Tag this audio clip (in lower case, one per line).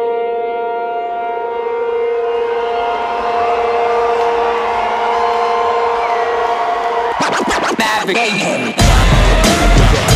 music